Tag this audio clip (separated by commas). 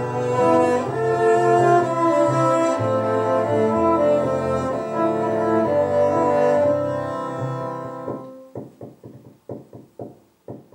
Music, Cello, String section, Musical instrument, Bowed string instrument